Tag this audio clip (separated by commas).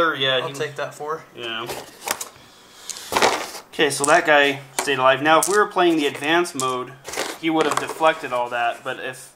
Speech